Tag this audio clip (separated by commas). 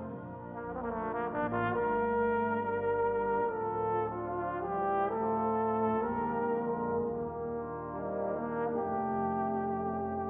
Trumpet, Brass instrument